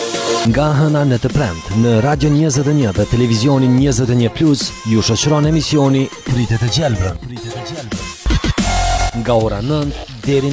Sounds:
speech, music

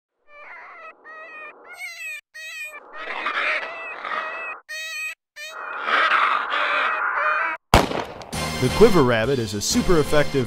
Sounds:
music, animal, speech

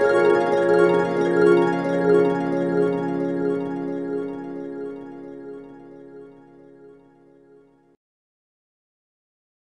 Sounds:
music, sound effect

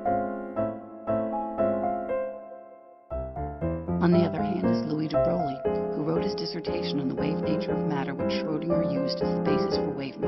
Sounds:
speech, music

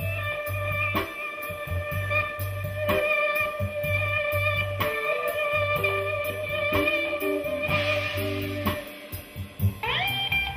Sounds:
plucked string instrument, musical instrument, guitar, music, blues, drum

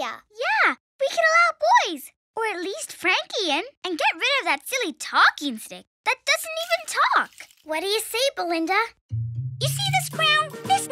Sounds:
kid speaking, music

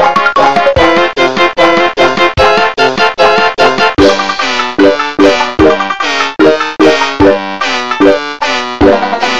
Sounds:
music, funny music

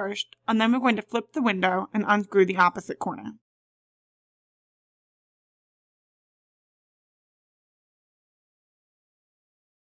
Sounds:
speech

